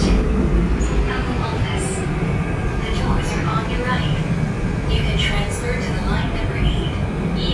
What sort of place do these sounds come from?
subway train